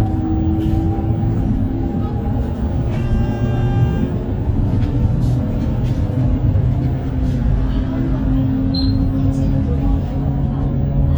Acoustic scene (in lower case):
bus